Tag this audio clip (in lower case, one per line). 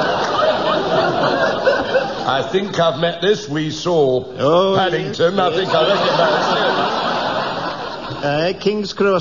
speech